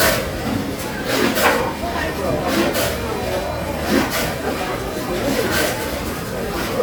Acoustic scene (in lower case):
restaurant